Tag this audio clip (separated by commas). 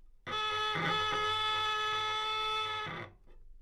Music, Musical instrument, Bowed string instrument